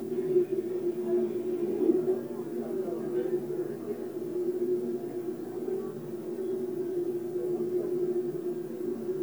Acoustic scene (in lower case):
subway train